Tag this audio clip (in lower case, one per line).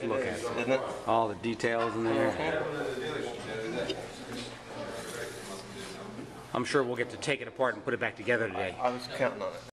speech